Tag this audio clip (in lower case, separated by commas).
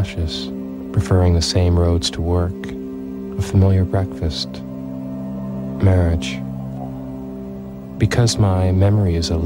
speech, music